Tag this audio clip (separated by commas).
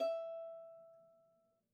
Music, Musical instrument, Bowed string instrument